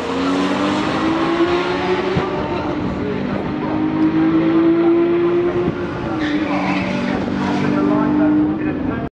Car passing by and a man speaking